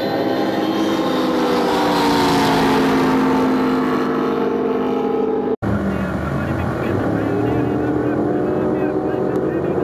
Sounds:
speedboat, vehicle, speech, water vehicle

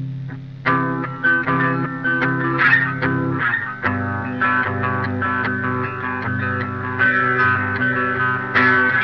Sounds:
guitar, musical instrument, music

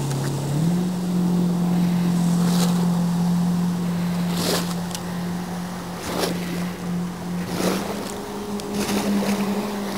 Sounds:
motorboat, vehicle, water vehicle

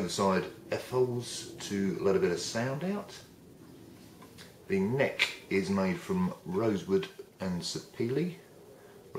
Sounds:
speech

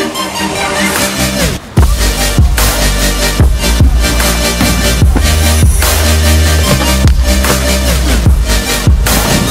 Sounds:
music

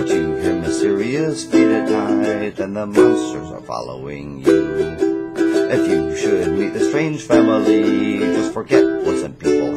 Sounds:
music, ukulele

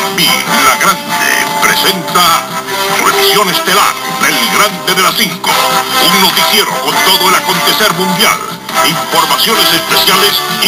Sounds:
music, speech, radio

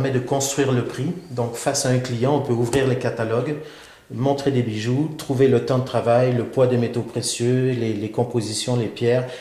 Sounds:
speech

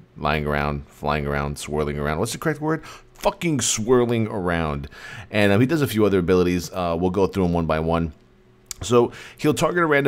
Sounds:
speech

